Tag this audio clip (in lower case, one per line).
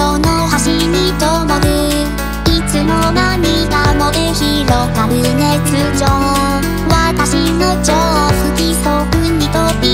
music
musical instrument